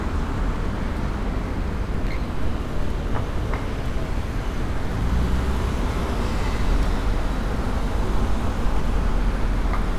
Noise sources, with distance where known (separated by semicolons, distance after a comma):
engine of unclear size, near